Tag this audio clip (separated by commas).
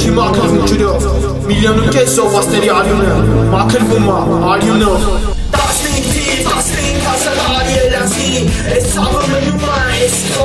Music, Heavy metal